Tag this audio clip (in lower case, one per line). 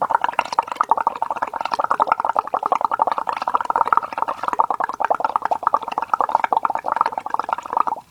liquid